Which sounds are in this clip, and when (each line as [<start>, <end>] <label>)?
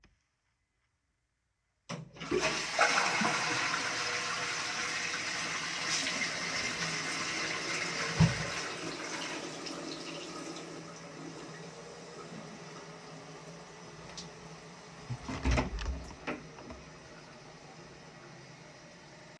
[1.87, 19.39] toilet flushing
[5.64, 11.36] running water
[15.04, 16.85] door